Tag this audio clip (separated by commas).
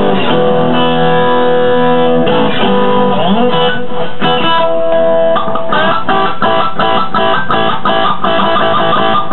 Musical instrument, Music, Plucked string instrument, Electric guitar, Guitar